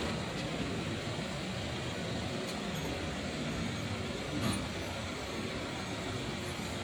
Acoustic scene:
street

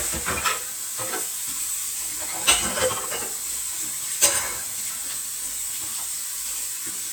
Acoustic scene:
kitchen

